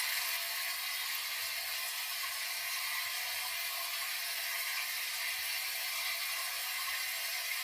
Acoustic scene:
restroom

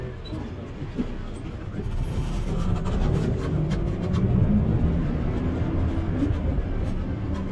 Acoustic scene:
bus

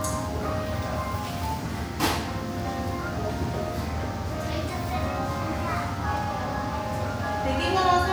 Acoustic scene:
cafe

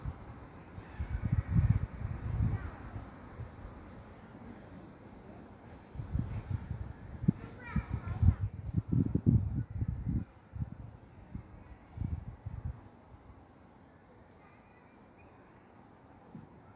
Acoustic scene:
park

